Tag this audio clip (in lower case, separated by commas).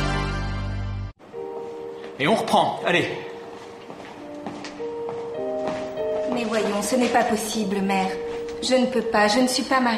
speech, music